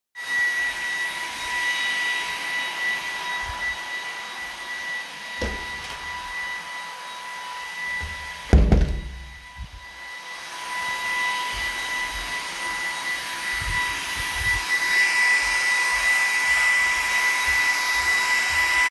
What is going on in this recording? A vacuum cleaner is running in the living room. I walk around while the vacuum cleaner is operating. During the movement I open and close a door while footsteps continue.